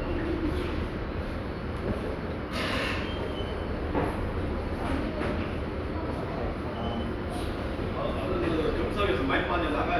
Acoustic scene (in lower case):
subway station